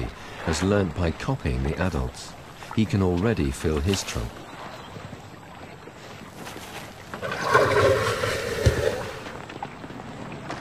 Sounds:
Speech

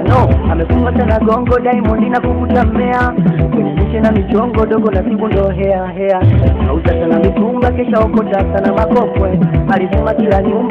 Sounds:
Music, Folk music

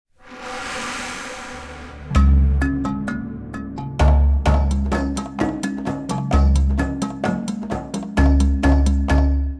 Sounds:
Wood block, Music

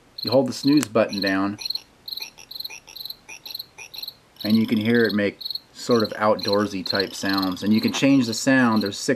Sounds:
Speech

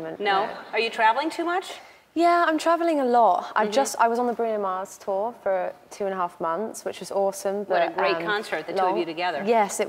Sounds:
Female speech

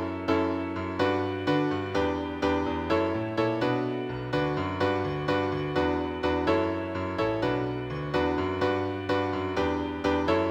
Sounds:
Music

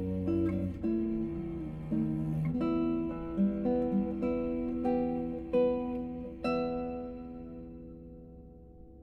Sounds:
Bowed string instrument, Cello

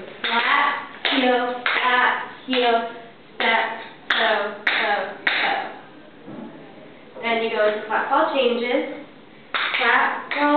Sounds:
Speech

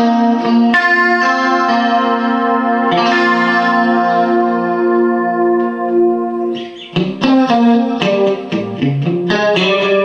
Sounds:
Music

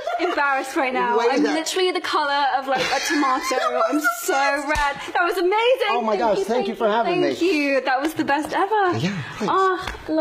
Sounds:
Speech

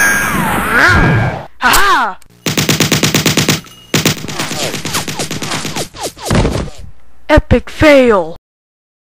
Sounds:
Sound effect

